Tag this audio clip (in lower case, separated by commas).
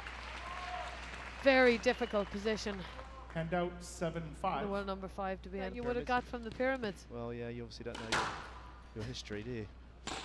playing squash